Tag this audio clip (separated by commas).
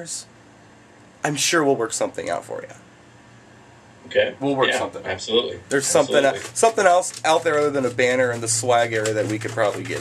Speech